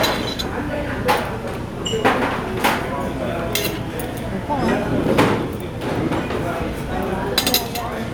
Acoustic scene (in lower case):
crowded indoor space